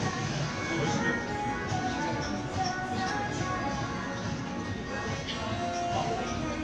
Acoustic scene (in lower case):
crowded indoor space